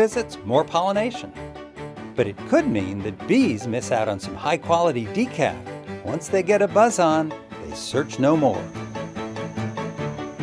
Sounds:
cricket, insect

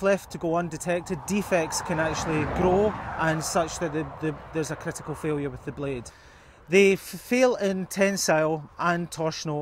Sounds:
speech

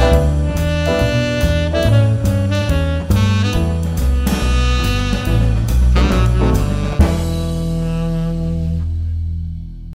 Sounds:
music

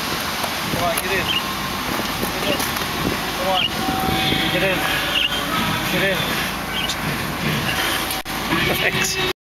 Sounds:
music, speech

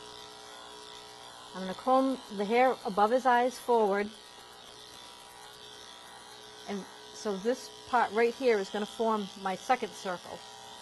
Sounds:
speech, electric shaver

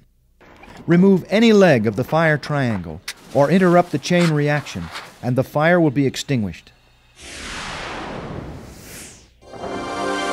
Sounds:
speech, music

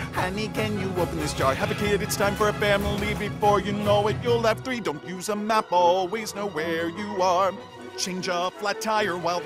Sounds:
music

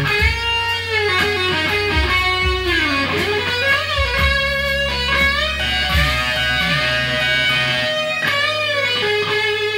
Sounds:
guitar, plucked string instrument, music, musical instrument, electric guitar

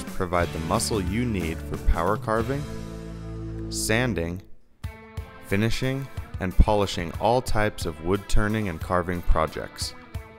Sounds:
speech, music

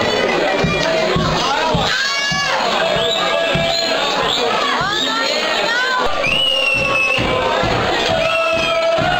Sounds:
music, speech

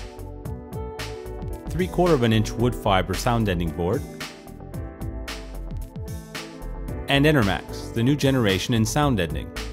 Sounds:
music, speech

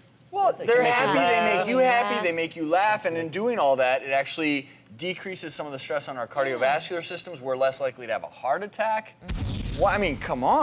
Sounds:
speech

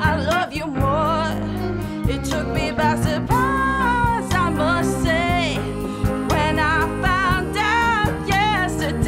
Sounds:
rhythm and blues, blues, music

